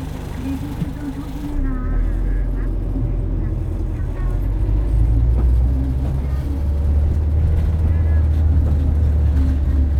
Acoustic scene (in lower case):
bus